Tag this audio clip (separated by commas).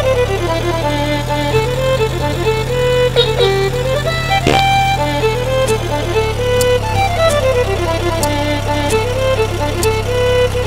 Car, Music